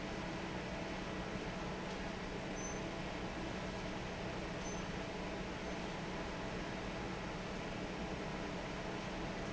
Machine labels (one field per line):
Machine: fan